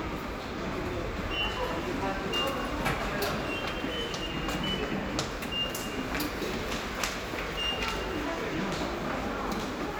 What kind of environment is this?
subway station